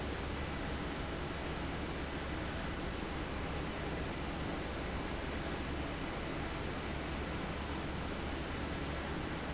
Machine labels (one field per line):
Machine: fan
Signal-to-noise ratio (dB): -6 dB